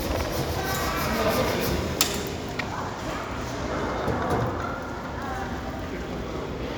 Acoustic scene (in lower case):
crowded indoor space